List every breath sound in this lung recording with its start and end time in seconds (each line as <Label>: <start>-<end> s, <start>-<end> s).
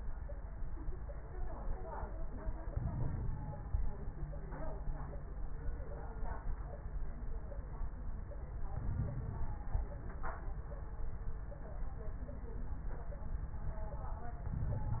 Inhalation: 2.67-3.93 s, 8.66-9.92 s, 14.49-15.00 s
Crackles: 2.67-3.93 s, 8.66-9.92 s, 14.49-15.00 s